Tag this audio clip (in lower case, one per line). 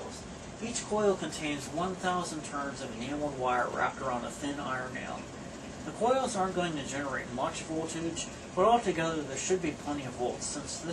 speech